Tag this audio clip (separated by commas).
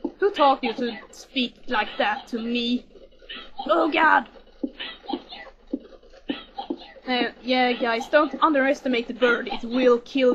Speech